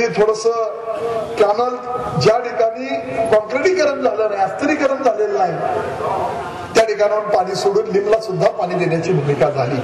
An adult male is speaking